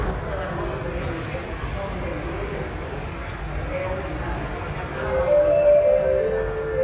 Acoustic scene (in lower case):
subway station